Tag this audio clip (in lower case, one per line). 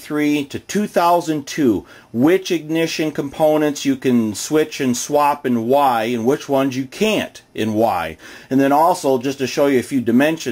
speech